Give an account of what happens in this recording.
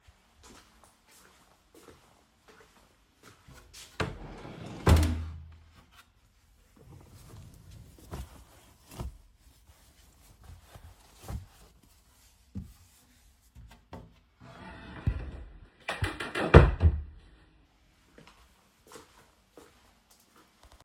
I walked up to my wardrobe and then opened it to take clothes and then I closed and walked back